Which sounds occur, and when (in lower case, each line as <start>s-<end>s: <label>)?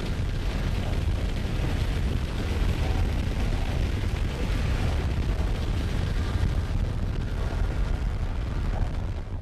0.0s-9.4s: eruption